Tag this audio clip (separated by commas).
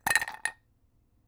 Glass, Chink